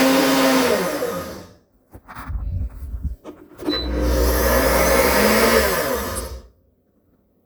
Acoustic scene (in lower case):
kitchen